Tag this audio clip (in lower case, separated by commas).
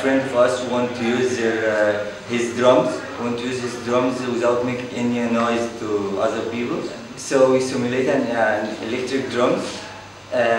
speech